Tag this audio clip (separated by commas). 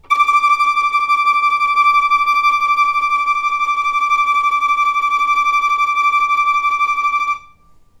Musical instrument, Bowed string instrument, Music